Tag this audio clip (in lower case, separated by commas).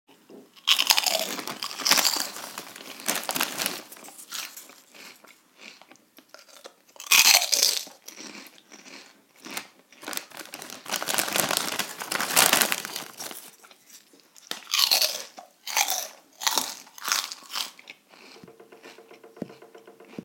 chewing